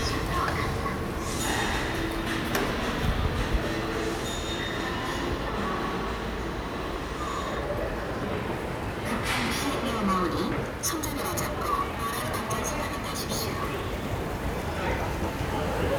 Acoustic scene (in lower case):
subway station